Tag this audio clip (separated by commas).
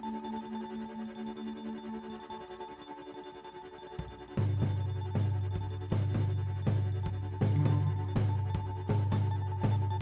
Music